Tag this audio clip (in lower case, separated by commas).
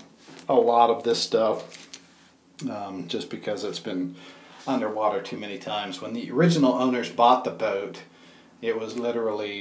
speech, inside a small room